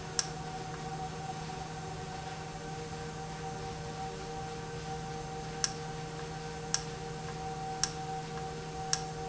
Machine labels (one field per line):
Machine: valve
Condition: normal